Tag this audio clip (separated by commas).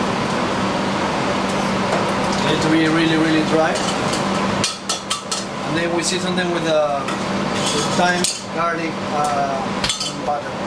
inside a large room or hall, Speech